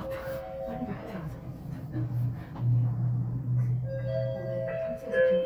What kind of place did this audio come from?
elevator